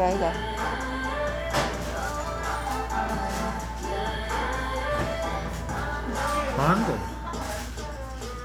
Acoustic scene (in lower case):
cafe